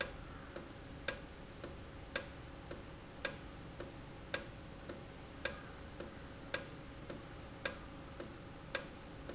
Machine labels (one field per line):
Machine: valve